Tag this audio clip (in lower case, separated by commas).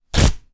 tearing